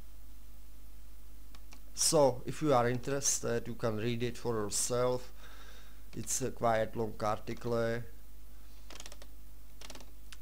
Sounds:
Computer keyboard, Speech

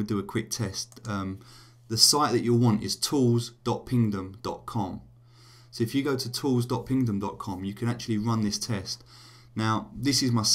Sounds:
Speech

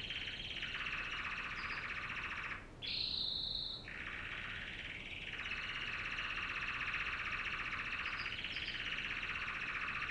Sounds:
canary calling

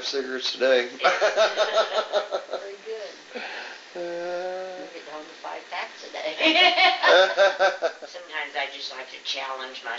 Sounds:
Speech

